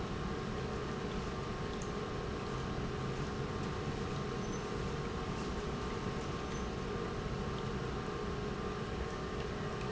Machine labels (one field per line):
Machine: pump